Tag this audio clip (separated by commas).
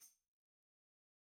Music, Percussion, Musical instrument, Tambourine